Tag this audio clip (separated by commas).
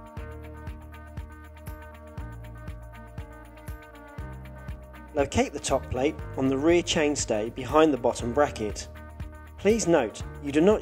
Music, Speech